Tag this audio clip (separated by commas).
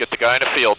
man speaking, Speech, Human voice